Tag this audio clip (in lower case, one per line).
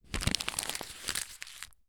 crumpling